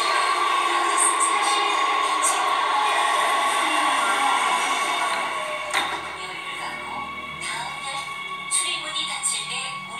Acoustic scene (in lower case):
subway train